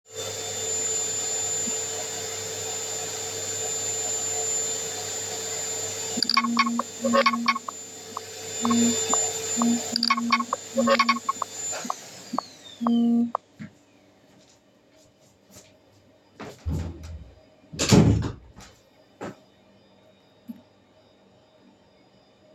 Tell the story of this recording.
I was vacuuming in a living room, I have then heard the phone in my bedroom ringing, so I have turned the vacuum off, walked into the bedroom and closed the doors behind me.